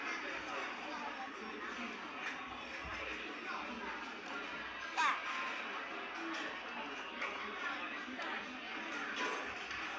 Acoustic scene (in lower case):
restaurant